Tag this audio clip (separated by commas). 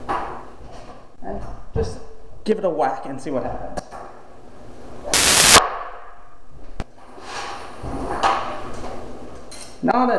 Speech, inside a small room